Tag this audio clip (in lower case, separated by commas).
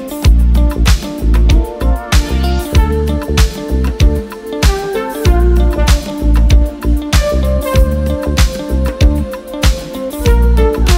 music, funk